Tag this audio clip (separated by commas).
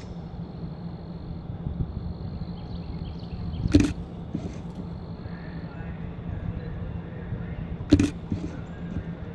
Speech